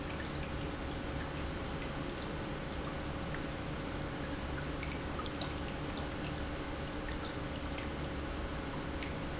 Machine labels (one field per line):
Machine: pump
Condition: normal